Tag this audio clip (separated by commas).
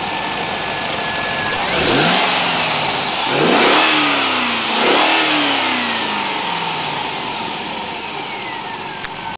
Vehicle, vroom